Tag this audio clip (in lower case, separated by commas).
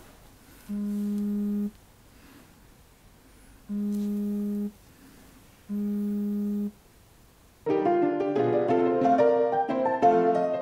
music, inside a small room, telephone